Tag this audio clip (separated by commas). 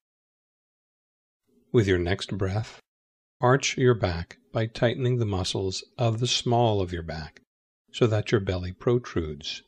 Speech